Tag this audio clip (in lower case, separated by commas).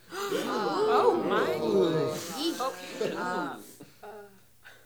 human group actions, breathing, crowd, respiratory sounds, gasp